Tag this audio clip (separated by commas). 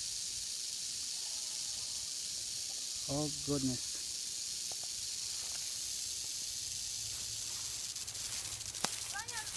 snake rattling